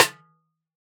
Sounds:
snare drum
music
percussion
musical instrument
drum

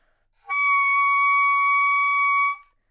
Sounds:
music
musical instrument
wind instrument

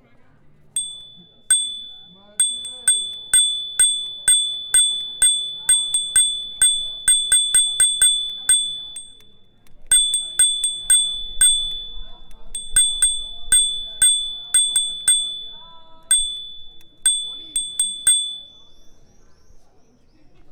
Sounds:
bell
alarm
bicycle
bicycle bell
vehicle

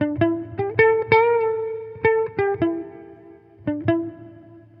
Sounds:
guitar
electric guitar
plucked string instrument
musical instrument
music

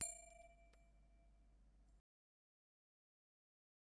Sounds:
bell

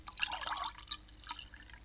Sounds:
dribble
fill (with liquid)
pour
liquid

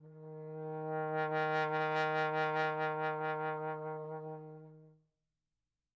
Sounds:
brass instrument
music
musical instrument

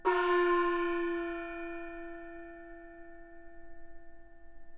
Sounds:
gong
musical instrument
music
percussion

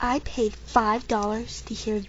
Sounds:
human voice

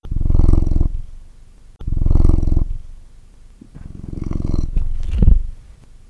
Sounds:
purr
pets
animal
cat

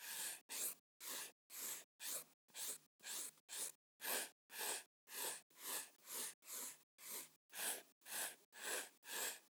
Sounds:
domestic sounds
writing

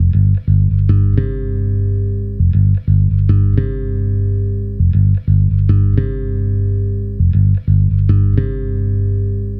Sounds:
guitar
bass guitar
musical instrument
plucked string instrument
music

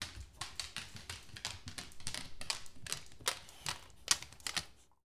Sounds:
pets
dog
animal

